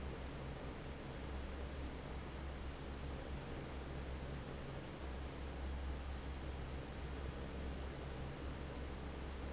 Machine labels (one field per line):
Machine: fan